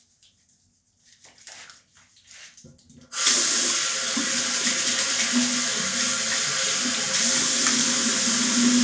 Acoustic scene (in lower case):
restroom